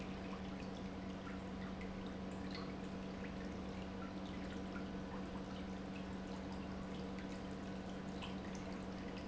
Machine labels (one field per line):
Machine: pump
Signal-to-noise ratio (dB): 6 dB